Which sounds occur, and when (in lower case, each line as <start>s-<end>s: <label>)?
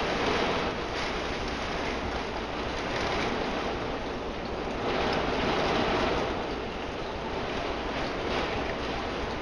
0.0s-9.4s: rain on surface